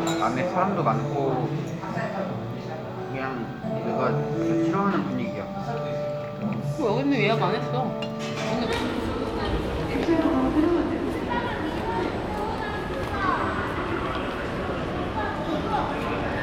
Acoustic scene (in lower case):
crowded indoor space